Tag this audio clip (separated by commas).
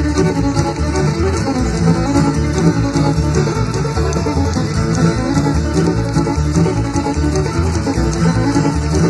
Music